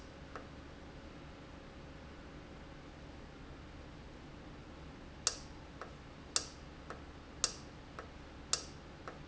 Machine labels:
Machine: valve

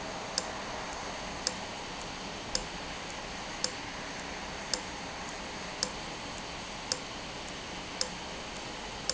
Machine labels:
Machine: valve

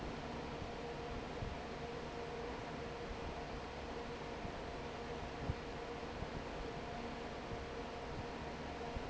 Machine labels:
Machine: fan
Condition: normal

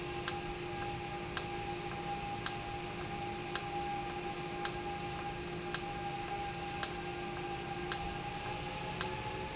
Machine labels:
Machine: valve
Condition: normal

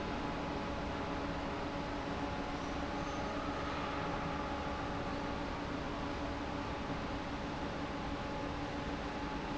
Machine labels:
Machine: fan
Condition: normal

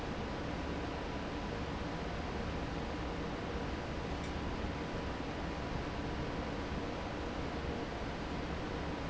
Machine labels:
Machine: fan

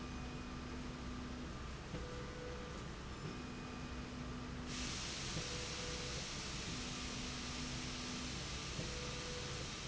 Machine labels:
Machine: slide rail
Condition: normal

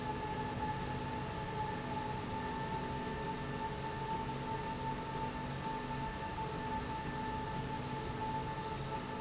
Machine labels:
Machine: slide rail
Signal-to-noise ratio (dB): -6 dB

